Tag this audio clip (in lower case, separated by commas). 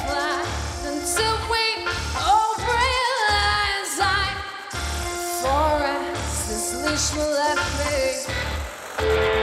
music